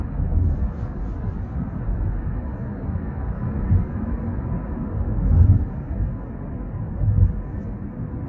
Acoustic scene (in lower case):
car